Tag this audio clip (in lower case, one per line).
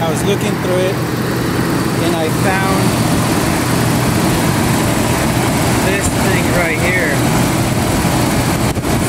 idling
medium engine (mid frequency)
vehicle
engine
speech